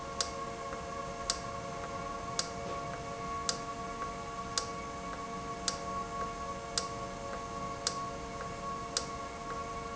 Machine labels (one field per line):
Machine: valve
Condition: normal